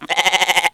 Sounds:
livestock, Animal

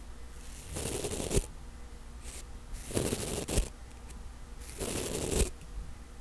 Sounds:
home sounds

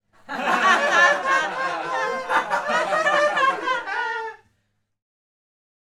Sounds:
Laughter, Human voice

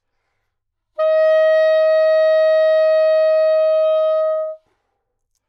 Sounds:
Musical instrument, Music, woodwind instrument

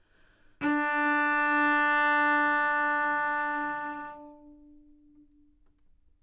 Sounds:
Bowed string instrument, Musical instrument, Music

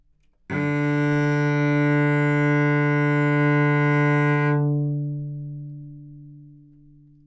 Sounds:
Music, Bowed string instrument, Musical instrument

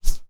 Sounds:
swoosh

